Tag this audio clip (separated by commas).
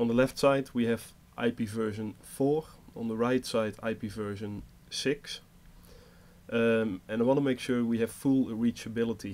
Speech